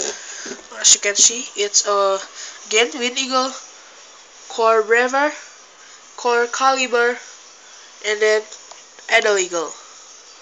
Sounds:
Speech

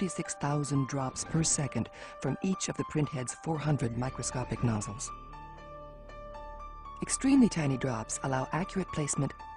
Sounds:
Music, Speech

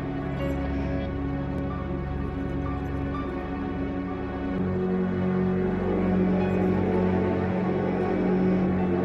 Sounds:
inside a large room or hall, Orchestra, Music

